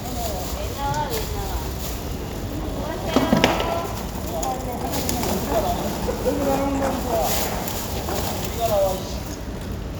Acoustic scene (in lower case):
residential area